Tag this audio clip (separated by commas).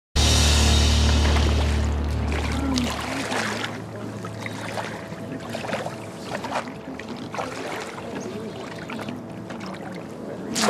rowboat